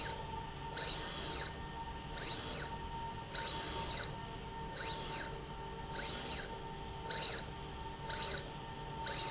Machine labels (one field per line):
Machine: slide rail